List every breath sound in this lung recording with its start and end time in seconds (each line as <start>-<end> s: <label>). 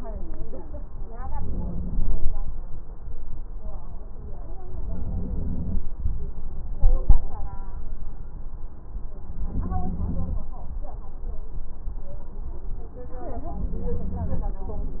1.27-2.31 s: inhalation
4.77-5.81 s: inhalation
9.39-10.43 s: inhalation
13.48-14.53 s: inhalation